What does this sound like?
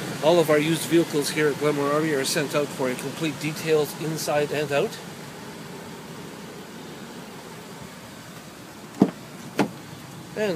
Male is speaking with a thump of a car door